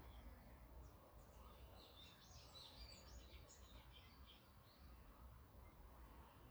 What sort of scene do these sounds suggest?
park